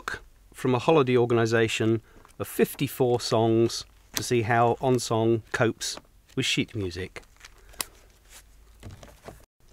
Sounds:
speech

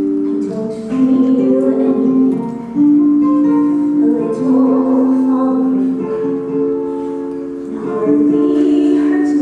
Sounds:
music

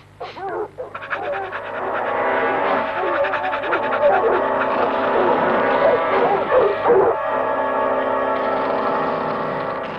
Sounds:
yip
dog
animal
bow-wow
music
pets

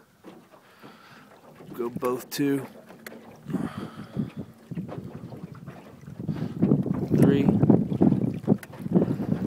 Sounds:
vehicle
motorboat
water vehicle
speech

